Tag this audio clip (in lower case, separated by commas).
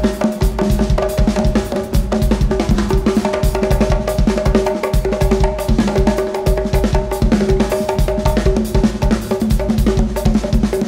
musical instrument, inside a public space, music